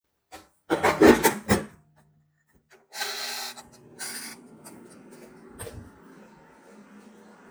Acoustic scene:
kitchen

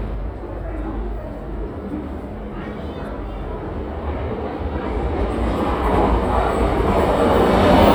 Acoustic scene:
subway station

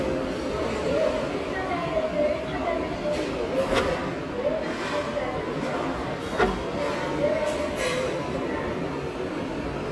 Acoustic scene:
restaurant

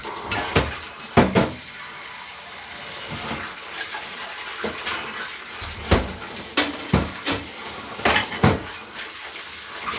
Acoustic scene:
kitchen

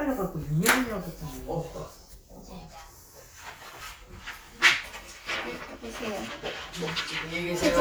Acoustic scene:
crowded indoor space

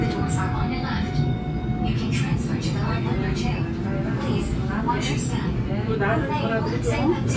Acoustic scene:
subway train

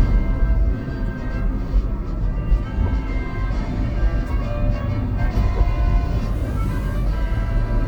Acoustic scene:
car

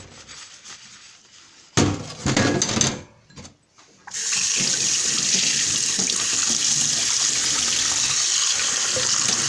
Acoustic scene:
kitchen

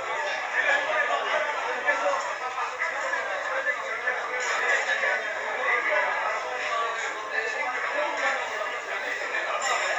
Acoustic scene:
crowded indoor space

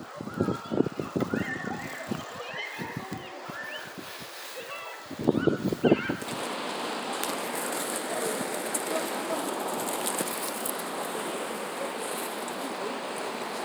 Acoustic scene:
residential area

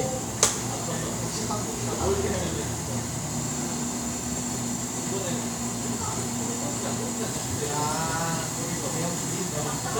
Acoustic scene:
cafe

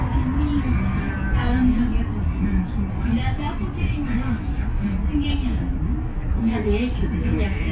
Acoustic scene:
bus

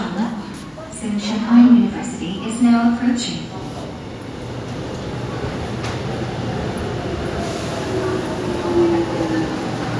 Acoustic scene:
subway station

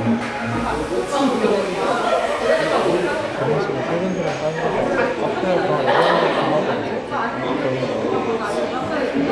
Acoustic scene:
crowded indoor space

